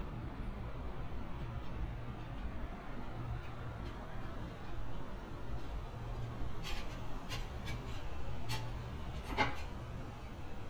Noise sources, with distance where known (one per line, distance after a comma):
background noise